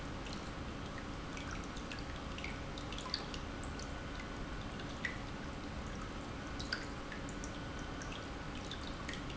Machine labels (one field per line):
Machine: pump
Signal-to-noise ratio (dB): 0 dB